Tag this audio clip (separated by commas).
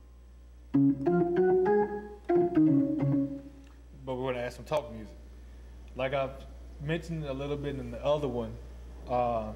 Speech, Music